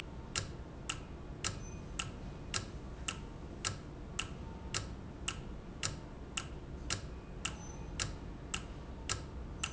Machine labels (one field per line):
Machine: valve